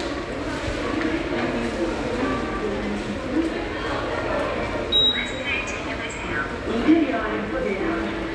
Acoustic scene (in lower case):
subway station